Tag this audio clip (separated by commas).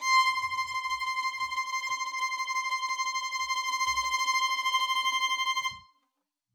Music, Musical instrument, Bowed string instrument